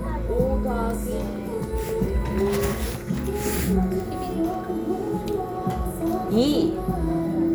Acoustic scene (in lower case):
crowded indoor space